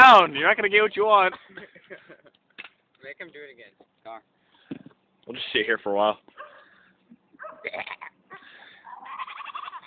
A man is talking and a sheep bleats